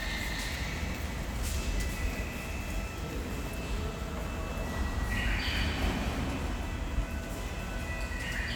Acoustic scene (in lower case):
subway station